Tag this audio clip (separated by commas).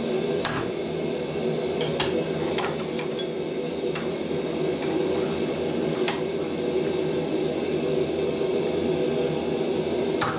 forging swords